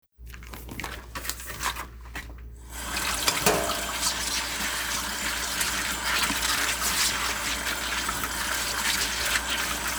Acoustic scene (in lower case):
kitchen